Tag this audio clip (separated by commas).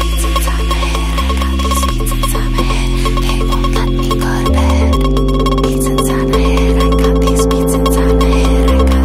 Music